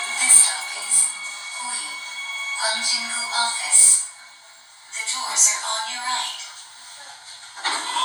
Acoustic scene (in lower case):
subway train